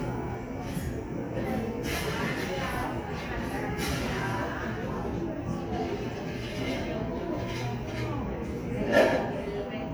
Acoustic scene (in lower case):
cafe